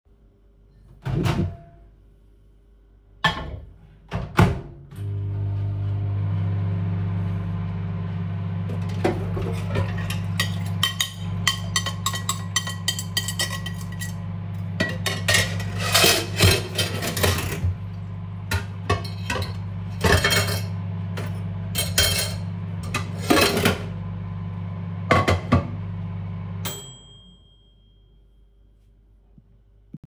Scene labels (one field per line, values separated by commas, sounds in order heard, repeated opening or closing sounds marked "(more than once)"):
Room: kitchen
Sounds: microwave, cutlery and dishes